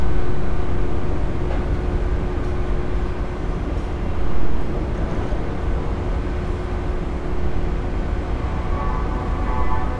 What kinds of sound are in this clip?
engine of unclear size, unidentified alert signal